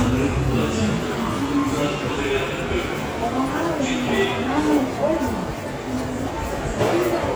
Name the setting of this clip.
subway station